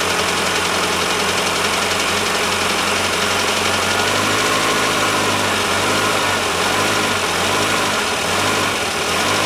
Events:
[0.00, 4.17] engine knocking
[0.00, 9.45] medium engine (mid frequency)
[4.05, 5.52] vroom
[5.71, 6.42] vroom
[6.58, 7.14] vroom
[7.39, 8.07] vroom
[8.25, 8.74] vroom
[8.93, 9.45] vroom

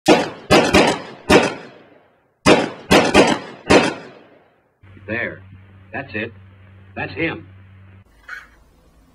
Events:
[0.02, 9.14] mechanisms
[0.03, 1.68] gunshot
[2.44, 4.02] gunshot
[5.08, 5.45] male speech
[5.90, 6.27] male speech
[6.93, 7.41] male speech
[8.21, 8.56] generic impact sounds

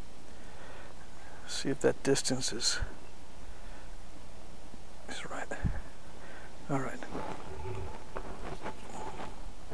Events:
[0.00, 9.73] mechanisms
[0.26, 0.95] breathing
[1.06, 1.37] breathing
[1.40, 2.84] man speaking
[3.34, 3.89] breathing
[5.01, 5.64] man speaking
[5.66, 5.92] breathing
[6.20, 6.47] breathing
[6.65, 7.31] man speaking
[7.37, 7.87] breathing
[7.46, 7.98] generic impact sounds
[8.12, 8.20] generic impact sounds
[8.42, 8.68] generic impact sounds
[8.67, 9.10] breathing
[8.95, 9.22] generic impact sounds

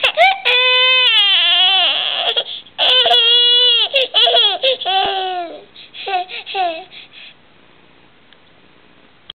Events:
[0.00, 9.21] mechanisms
[6.53, 6.84] infant cry
[6.91, 7.31] breathing
[8.30, 8.36] tick

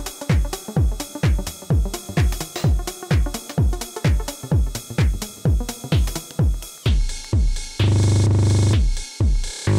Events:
[0.00, 9.75] music

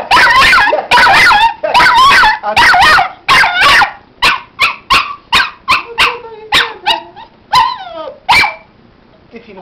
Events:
[0.00, 9.61] mechanisms
[0.09, 0.70] yip
[0.61, 0.85] human voice
[0.89, 1.50] yip
[1.60, 1.91] human voice
[1.72, 2.29] yip
[2.39, 2.65] human voice
[2.54, 3.09] yip
[3.28, 3.86] yip
[4.18, 4.40] yip
[4.56, 4.77] yip
[4.89, 5.10] yip
[5.30, 5.50] yip
[5.65, 5.84] yip
[5.74, 7.23] woman speaking
[5.77, 9.61] conversation
[5.95, 6.19] yip
[6.49, 6.72] yip
[6.82, 7.04] yip
[7.50, 8.13] yip
[7.83, 7.94] tick
[8.03, 8.12] tick
[8.27, 8.61] yip

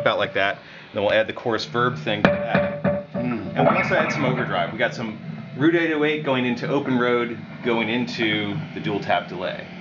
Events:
[0.00, 0.51] man speaking
[0.00, 9.80] background noise
[0.48, 0.87] breathing
[0.87, 2.75] man speaking
[3.08, 5.12] man speaking
[5.52, 7.23] man speaking
[7.59, 8.55] man speaking
[8.81, 9.63] man speaking
[9.76, 9.80] man speaking

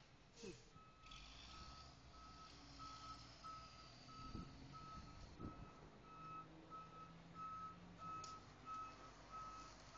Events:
[0.00, 9.95] truck
[0.28, 0.70] generic impact sounds
[0.32, 0.76] child speech
[0.68, 1.17] reversing beeps
[1.44, 1.84] reversing beeps
[2.09, 2.47] reversing beeps
[2.73, 3.14] reversing beeps
[3.42, 3.85] reversing beeps
[4.05, 4.42] reversing beeps
[4.09, 4.54] wind noise (microphone)
[4.71, 5.16] reversing beeps
[4.84, 5.10] wind noise (microphone)
[5.28, 5.58] wind noise (microphone)
[5.37, 5.75] reversing beeps
[6.00, 6.43] reversing beeps
[6.67, 7.11] reversing beeps
[7.31, 7.76] reversing beeps
[7.99, 8.42] reversing beeps
[8.18, 8.33] generic impact sounds
[8.62, 9.09] reversing beeps
[9.28, 9.68] reversing beeps
[9.91, 9.95] reversing beeps

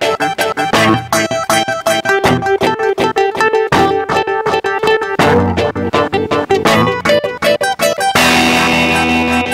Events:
[0.00, 9.53] music

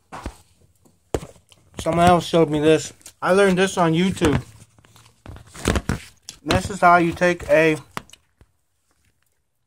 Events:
[0.00, 9.65] background noise
[0.07, 0.44] generic impact sounds
[0.58, 0.90] generic impact sounds
[1.06, 3.06] generic impact sounds
[1.78, 2.83] man speaking
[3.18, 4.42] man speaking
[4.13, 4.40] generic impact sounds
[4.60, 5.93] generic impact sounds
[6.22, 6.57] generic impact sounds
[6.42, 7.78] man speaking
[7.86, 8.44] generic impact sounds
[8.77, 9.38] generic impact sounds

